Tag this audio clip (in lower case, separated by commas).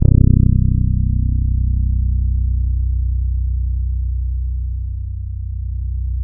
music, plucked string instrument, bass guitar, guitar, musical instrument